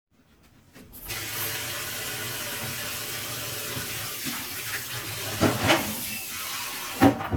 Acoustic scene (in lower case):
kitchen